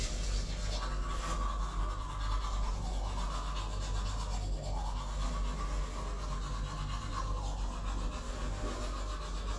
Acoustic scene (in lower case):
restroom